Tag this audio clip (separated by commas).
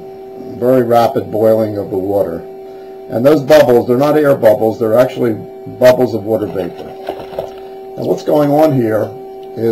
Speech